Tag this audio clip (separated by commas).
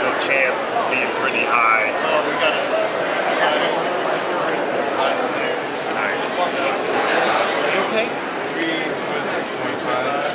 Speech, inside a public space